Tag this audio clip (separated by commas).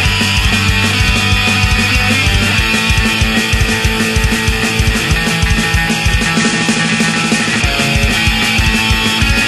Acoustic guitar, Music, Guitar, Musical instrument